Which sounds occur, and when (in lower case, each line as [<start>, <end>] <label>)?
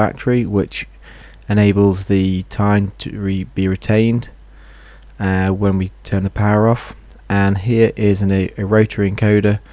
[0.00, 9.72] background noise
[0.01, 0.85] man speaking
[0.93, 1.34] breathing
[1.45, 4.28] man speaking
[4.44, 5.10] breathing
[5.07, 6.94] man speaking
[7.28, 9.62] man speaking